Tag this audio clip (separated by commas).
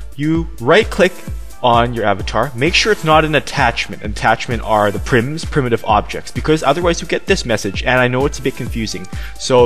Speech, Music